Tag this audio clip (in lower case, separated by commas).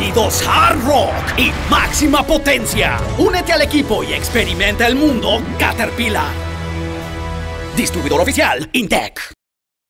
music, speech